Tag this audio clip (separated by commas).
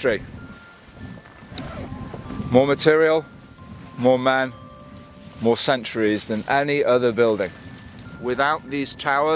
Music, Speech